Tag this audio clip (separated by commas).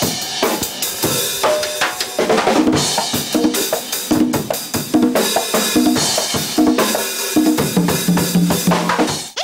playing drum kit, Drum, Rimshot, Snare drum, Drum kit, Bass drum, Percussion